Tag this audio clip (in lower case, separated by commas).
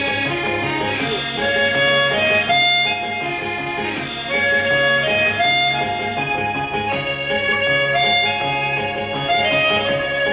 wind instrument, harmonica